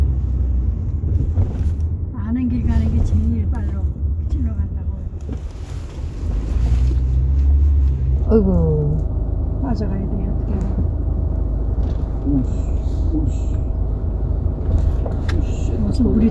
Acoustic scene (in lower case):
car